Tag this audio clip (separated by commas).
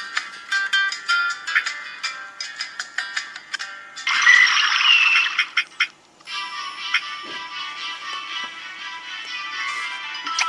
Music, inside a small room